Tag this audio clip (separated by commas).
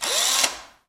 Power tool, Tools, Mechanisms, Engine, Drill